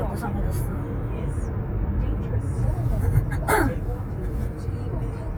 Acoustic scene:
car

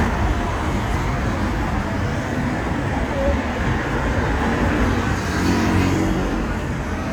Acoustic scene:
street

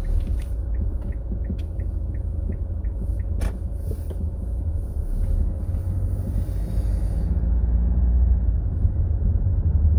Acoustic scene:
car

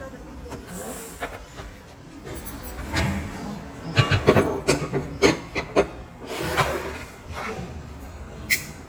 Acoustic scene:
restaurant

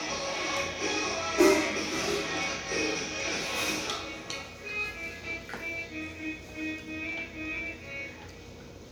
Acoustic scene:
restaurant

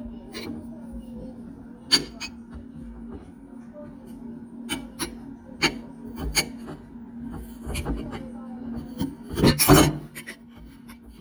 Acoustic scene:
kitchen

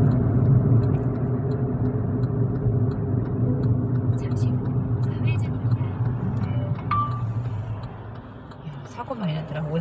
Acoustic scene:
car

